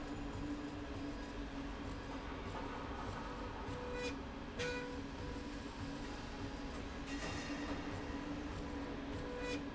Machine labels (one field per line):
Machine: slide rail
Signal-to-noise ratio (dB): 0 dB